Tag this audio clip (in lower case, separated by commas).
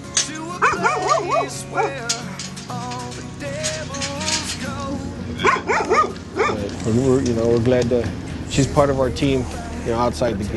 music, speech, pets, animal, bow-wow, dog